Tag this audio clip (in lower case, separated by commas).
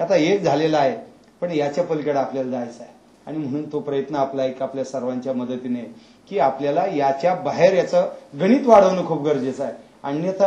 male speech, speech